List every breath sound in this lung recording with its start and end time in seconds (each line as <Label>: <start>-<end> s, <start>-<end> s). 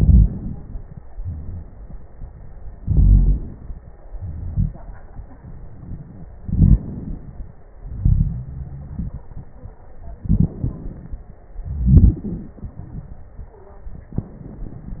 Inhalation: 0.00-1.12 s, 2.76-4.09 s, 6.41-7.81 s, 10.20-11.48 s, 13.72-15.00 s
Exhalation: 1.15-2.74 s, 4.10-6.39 s, 7.83-10.17 s, 11.49-13.72 s
Wheeze: 8.32-9.21 s, 11.65-12.55 s
Stridor: 8.61-10.23 s
Crackles: 0.00-1.12 s, 1.15-2.74 s, 2.76-4.09 s, 4.10-6.39 s, 6.41-7.81 s, 10.24-11.49 s, 13.72-15.00 s